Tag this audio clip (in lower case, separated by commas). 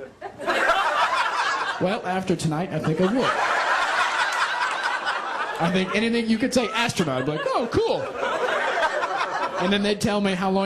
laughter, speech